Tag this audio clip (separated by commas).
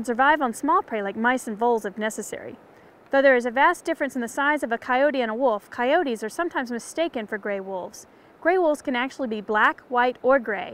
Speech